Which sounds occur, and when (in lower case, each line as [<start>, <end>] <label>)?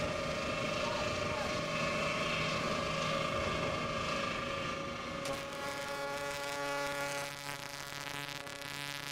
[0.00, 5.69] water
[0.00, 7.29] sailing ship
[0.77, 1.52] speech
[5.16, 5.96] distortion
[5.20, 9.11] foghorn
[6.13, 6.54] distortion
[6.77, 9.11] distortion